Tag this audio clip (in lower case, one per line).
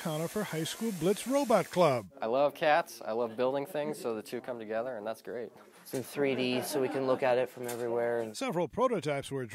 speech